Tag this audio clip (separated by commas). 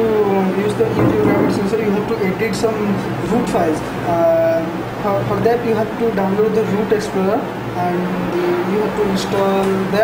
Speech